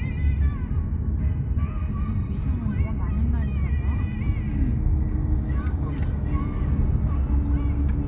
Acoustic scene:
car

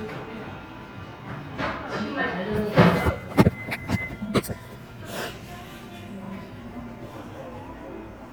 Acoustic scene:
cafe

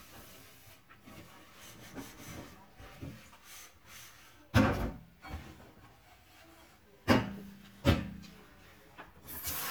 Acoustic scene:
kitchen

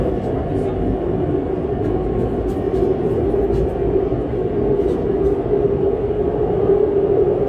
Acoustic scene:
subway train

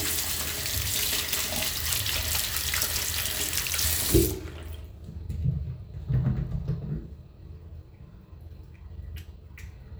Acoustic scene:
restroom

